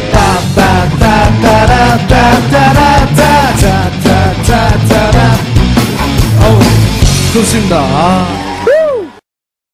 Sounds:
Plucked string instrument, Music, Guitar, Acoustic guitar, Musical instrument, Strum

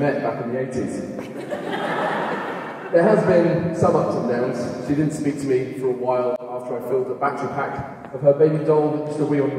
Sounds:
monologue, Speech, Male speech

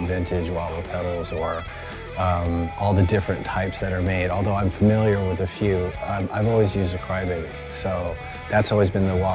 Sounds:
Music, Speech

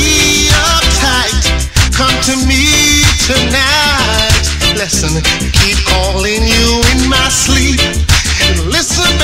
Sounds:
Music, Reggae

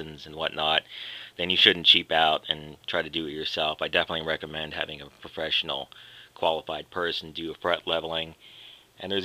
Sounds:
Speech

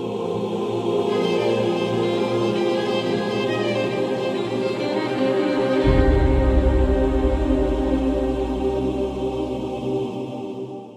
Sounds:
Music

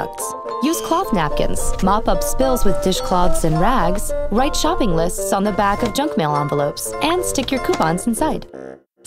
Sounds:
Music, Speech

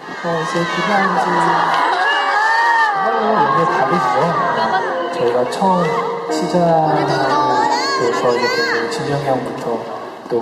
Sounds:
Speech, Music

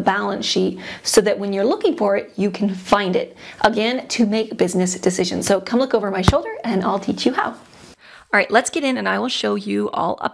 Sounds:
inside a small room, Speech

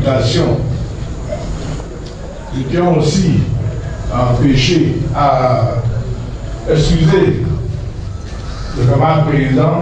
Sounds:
Speech

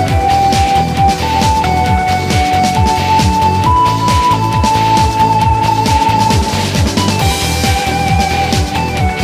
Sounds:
Music

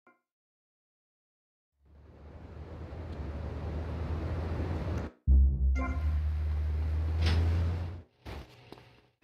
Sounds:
Music

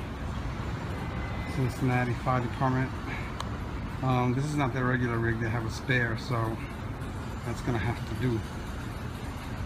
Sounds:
Speech, Vehicle

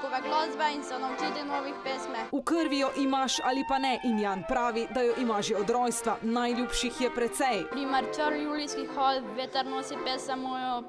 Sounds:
Music, Speech

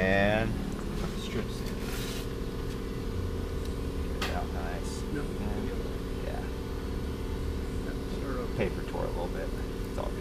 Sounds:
Speech

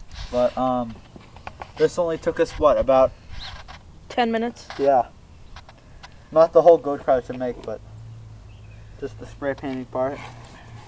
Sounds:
Speech

